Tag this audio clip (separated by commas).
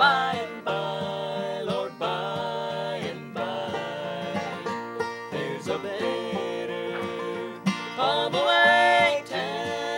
Female singing, Music, Male singing